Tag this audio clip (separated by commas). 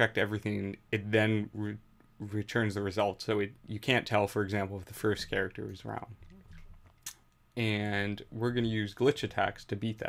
Speech